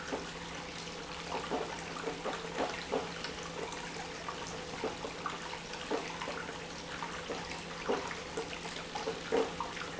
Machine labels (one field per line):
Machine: pump